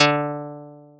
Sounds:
music, musical instrument, guitar, plucked string instrument

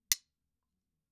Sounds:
domestic sounds, silverware

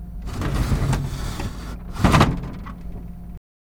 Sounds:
drawer open or close, domestic sounds

